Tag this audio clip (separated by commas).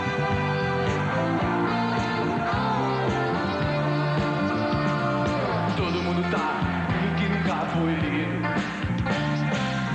Music